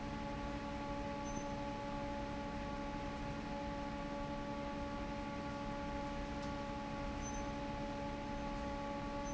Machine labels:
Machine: fan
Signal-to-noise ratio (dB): 0 dB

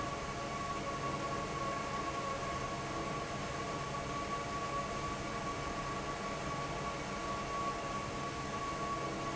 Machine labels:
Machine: fan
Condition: normal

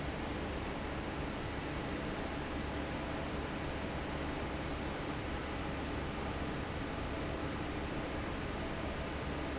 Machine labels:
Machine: fan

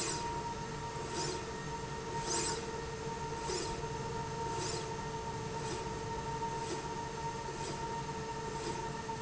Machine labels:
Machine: slide rail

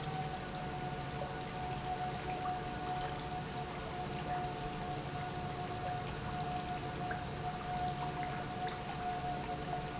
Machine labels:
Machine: pump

